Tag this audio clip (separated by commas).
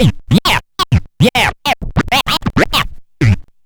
Music, Musical instrument, Scratching (performance technique)